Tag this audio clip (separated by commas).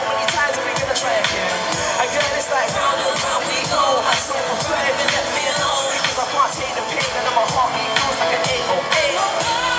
Music